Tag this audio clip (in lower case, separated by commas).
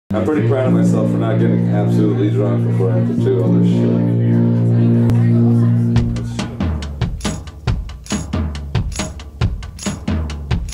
music, drum, drum kit, speech, drum roll